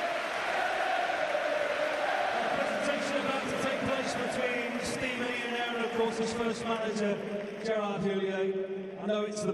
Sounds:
speech
narration
male speech

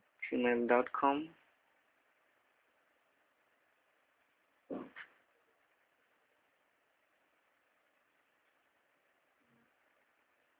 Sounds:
silence
inside a small room
speech

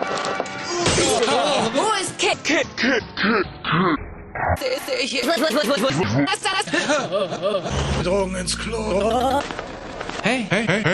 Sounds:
speech
sound effect

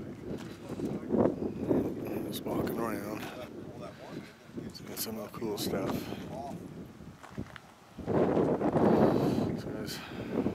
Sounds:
speech

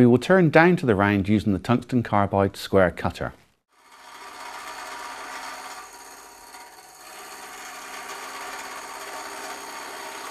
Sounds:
tools
wood
speech

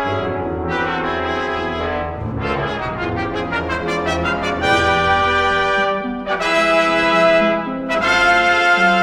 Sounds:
music
trombone
trumpet
brass instrument

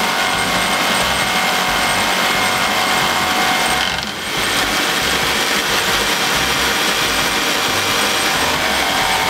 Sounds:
sawing
rub
wood

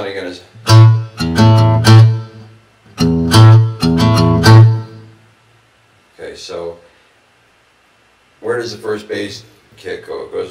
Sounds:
musical instrument
guitar
music

